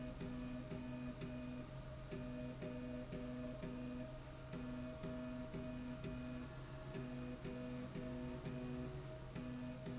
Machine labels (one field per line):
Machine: slide rail